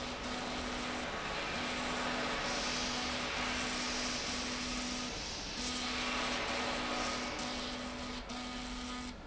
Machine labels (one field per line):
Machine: slide rail